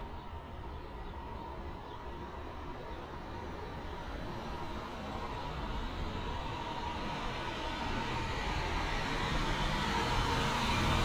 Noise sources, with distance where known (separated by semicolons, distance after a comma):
engine of unclear size, near